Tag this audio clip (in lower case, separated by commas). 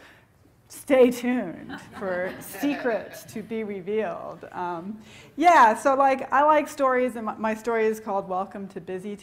speech, inside a large room or hall